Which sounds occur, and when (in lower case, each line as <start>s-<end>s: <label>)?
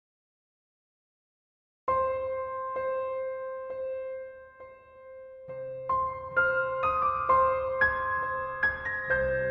1.8s-9.5s: music